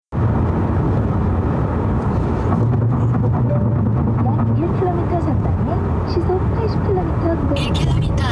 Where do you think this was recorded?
in a car